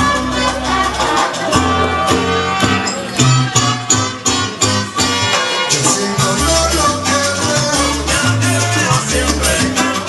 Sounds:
Music

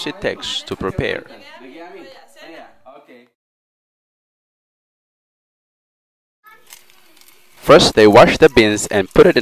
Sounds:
Speech

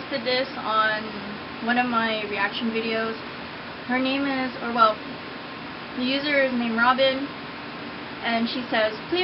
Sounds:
Speech

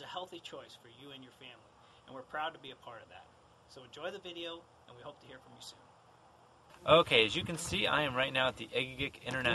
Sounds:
Speech

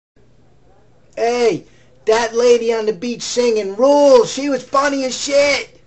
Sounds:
Speech

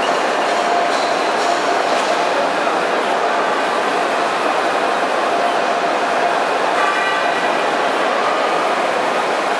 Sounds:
Printer

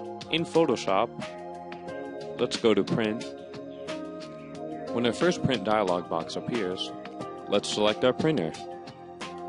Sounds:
Music, Speech

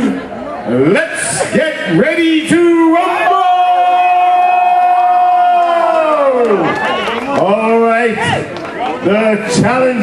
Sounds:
Speech, inside a public space

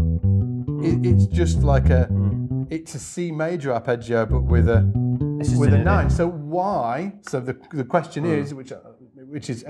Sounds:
Guitar, Music, Plucked string instrument, Speech, Bass guitar, Musical instrument

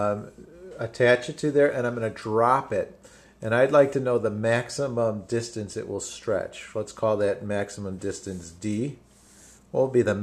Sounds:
Speech

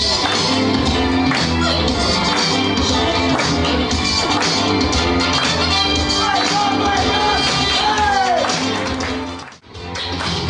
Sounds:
Speech, Music

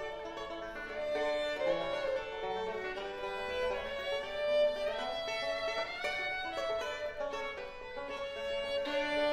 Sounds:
Music, Bowed string instrument, Musical instrument

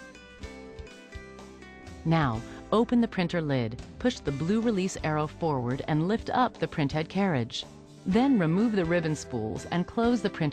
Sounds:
Speech, Music

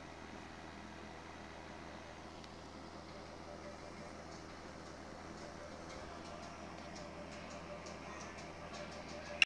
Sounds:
Music

